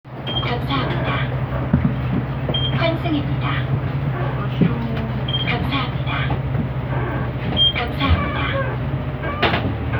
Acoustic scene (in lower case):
bus